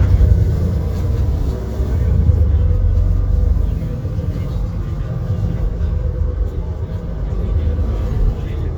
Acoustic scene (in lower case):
bus